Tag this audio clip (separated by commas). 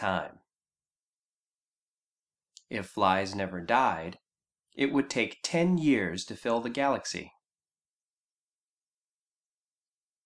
Speech